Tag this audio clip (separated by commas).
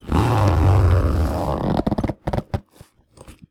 home sounds, Zipper (clothing)